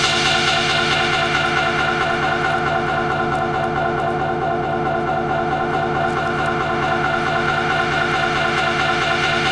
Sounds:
music
techno

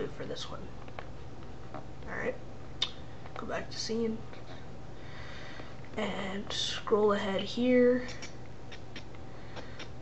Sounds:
speech

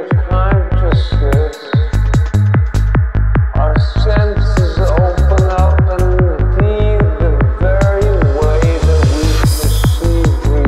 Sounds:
music
speech

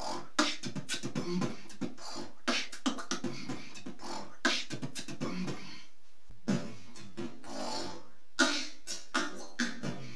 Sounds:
beatboxing
inside a small room

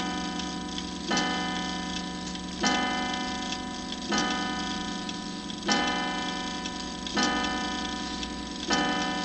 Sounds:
tick
tick-tock

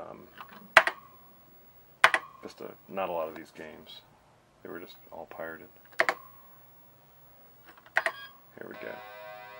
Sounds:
speech
inside a small room

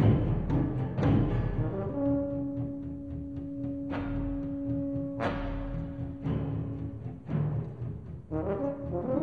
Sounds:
music

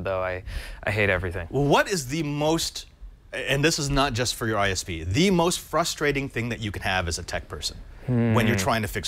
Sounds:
speech

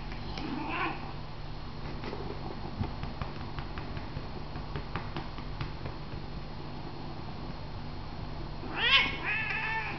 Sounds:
cat
animal
domestic animals

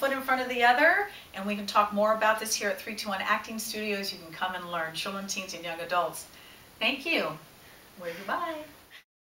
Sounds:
speech

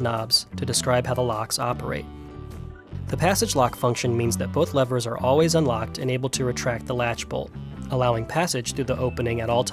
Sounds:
speech
music

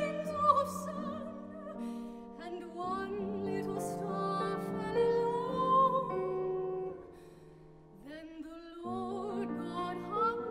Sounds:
piano
musical instrument
keyboard (musical)
classical music
singing
music

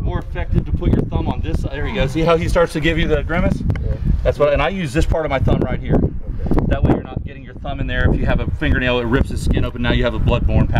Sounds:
speech

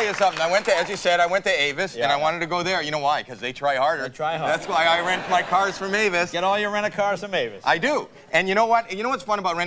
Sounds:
speech

